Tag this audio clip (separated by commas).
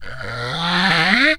Wood